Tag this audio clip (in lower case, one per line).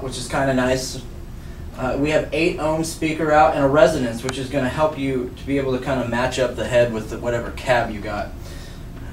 speech